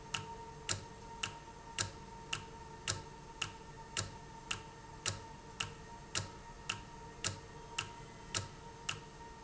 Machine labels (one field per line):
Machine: valve